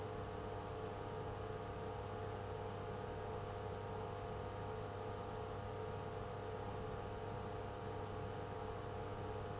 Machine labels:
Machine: pump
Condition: abnormal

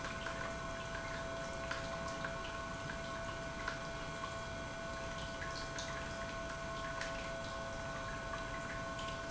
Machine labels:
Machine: pump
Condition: normal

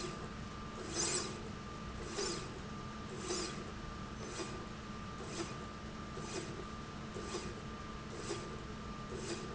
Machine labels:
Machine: slide rail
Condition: normal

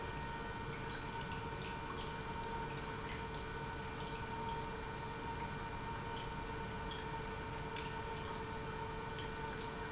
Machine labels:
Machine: pump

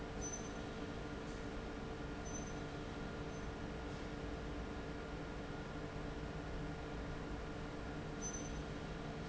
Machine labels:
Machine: fan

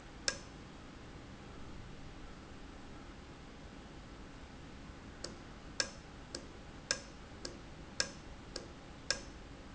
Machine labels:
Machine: valve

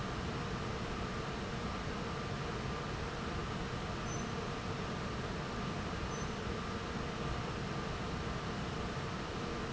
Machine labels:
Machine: fan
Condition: normal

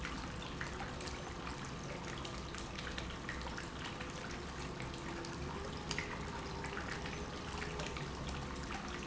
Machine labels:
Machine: pump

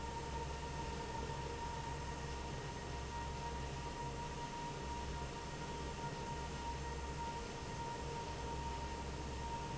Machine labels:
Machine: fan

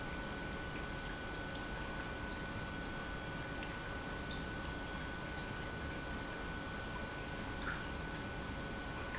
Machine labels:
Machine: pump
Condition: normal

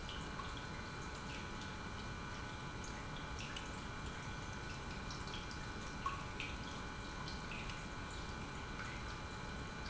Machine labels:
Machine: pump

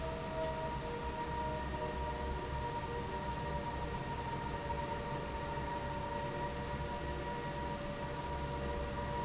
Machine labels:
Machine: fan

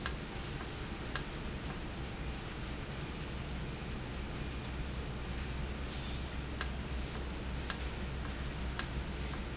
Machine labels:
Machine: valve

